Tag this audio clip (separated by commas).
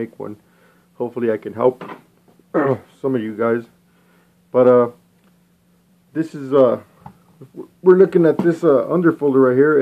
Speech